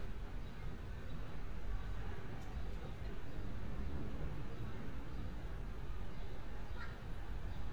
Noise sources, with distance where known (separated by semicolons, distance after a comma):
person or small group talking